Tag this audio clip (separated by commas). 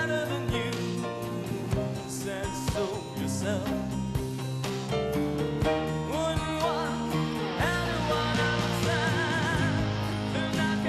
Music